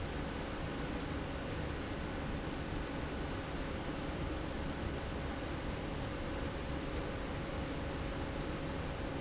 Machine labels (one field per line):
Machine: slide rail